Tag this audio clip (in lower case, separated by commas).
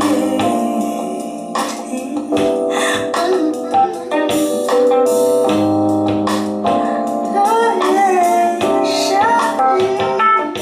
inside a small room, music